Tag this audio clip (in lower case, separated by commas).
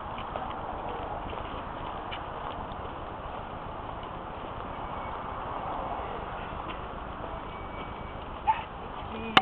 bow-wow